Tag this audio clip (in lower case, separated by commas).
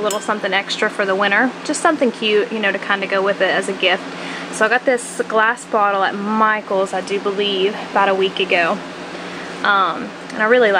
speech